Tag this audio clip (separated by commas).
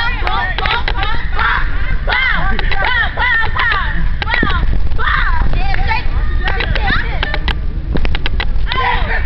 Speech